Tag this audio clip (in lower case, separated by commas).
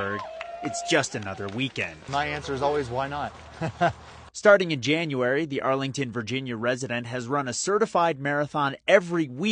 shout, speech, laughter